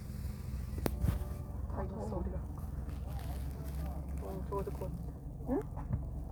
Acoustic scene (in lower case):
car